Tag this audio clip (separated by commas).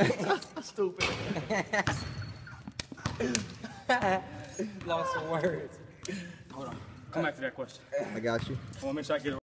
Basketball bounce, Speech